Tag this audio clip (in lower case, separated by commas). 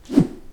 swish